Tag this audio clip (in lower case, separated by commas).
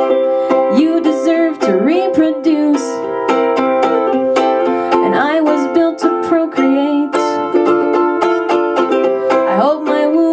music, ukulele